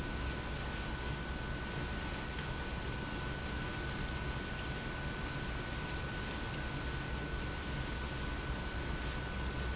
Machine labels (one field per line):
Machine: pump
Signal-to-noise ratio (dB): -6 dB